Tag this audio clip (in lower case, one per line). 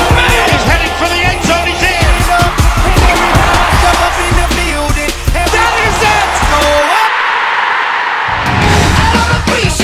speech
music